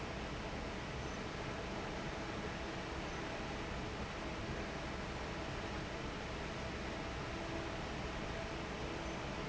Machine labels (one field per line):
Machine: fan